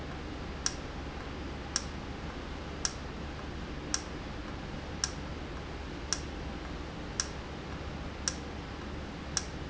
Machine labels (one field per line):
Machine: valve